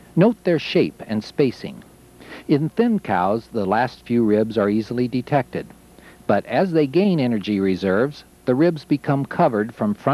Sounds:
speech

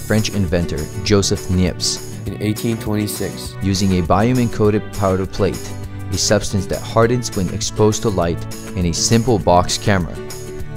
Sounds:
speech
music

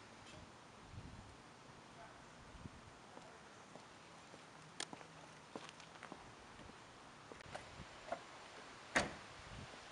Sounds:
static

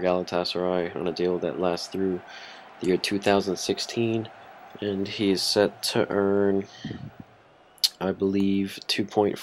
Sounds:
speech

